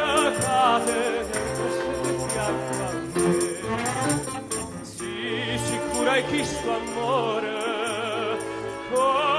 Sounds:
Opera, Male singing, Music

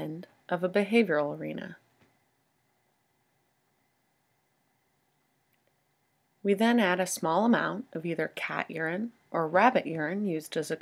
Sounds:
Speech

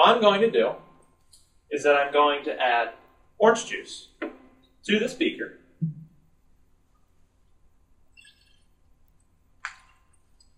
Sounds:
Speech

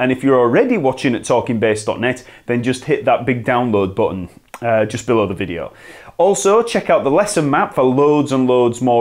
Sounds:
Speech

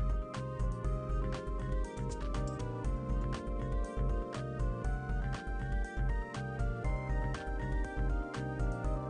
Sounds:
Music

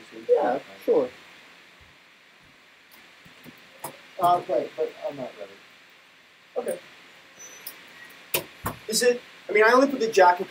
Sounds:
Speech

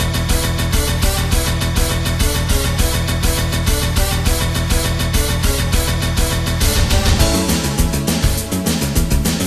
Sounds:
Music

